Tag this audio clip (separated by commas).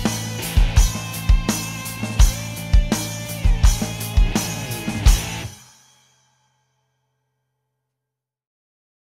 Music